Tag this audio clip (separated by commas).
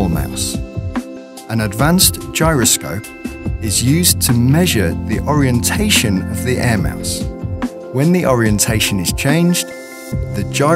Speech, Music